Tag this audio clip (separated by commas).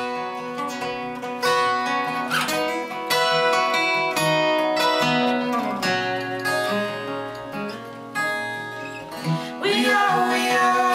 Singing, Strum, Music